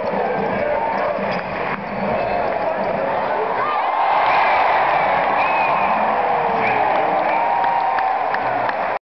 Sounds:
speech, music

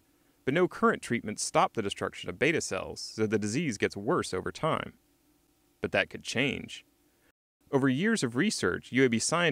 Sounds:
speech

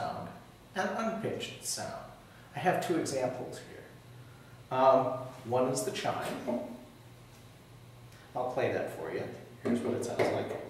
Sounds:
speech

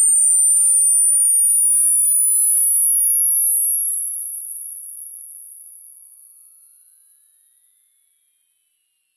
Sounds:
mouse squeaking

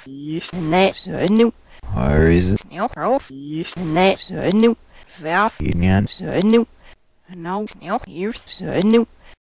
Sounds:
speech synthesizer, speech

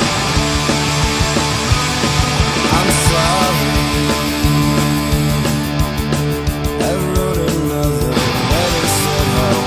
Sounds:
music, guitar, musical instrument, plucked string instrument, heavy metal

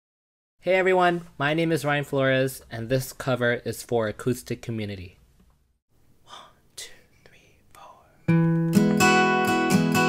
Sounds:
whispering, musical instrument

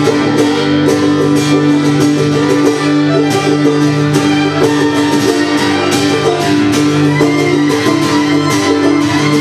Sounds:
cello, acoustic guitar, music, musical instrument, plucked string instrument, violin, guitar, pizzicato

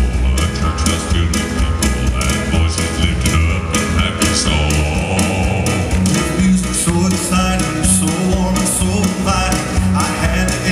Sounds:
male singing, music

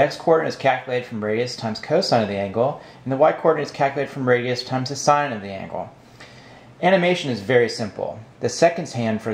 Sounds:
speech

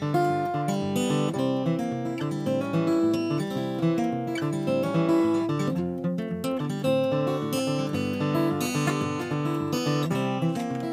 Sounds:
music, acoustic guitar

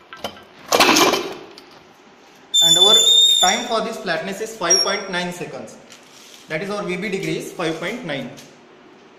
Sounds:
inside a large room or hall, speech

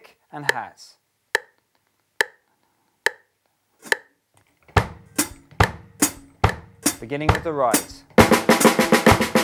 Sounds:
music, musical instrument, drum kit, drum, speech, bass drum

